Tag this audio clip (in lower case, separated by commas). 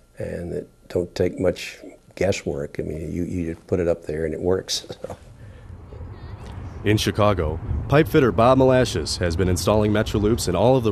speech